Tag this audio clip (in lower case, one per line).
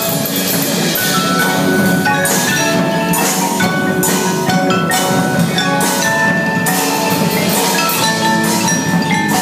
playing marimba